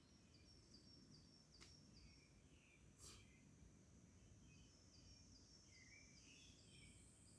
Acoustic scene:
park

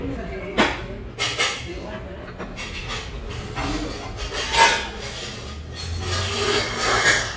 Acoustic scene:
restaurant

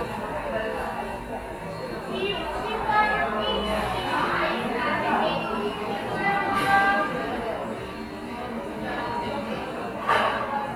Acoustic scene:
cafe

